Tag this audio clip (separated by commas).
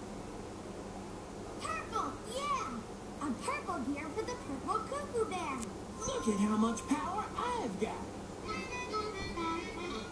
Music, Speech